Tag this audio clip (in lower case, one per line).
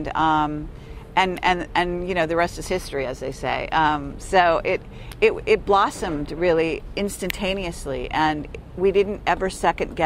speech